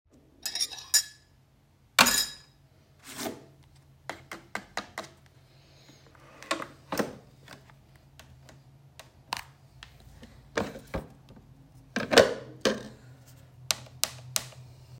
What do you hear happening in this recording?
I walked to the coffee machine and placed a cup underneath the spout. I inserted a coffee pod into the machine. I opened the lid slowly then closed it. I pressed the brew button but the machine did not start.